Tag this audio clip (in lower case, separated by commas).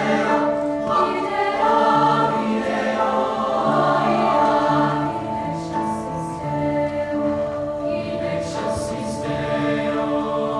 choir, singing, music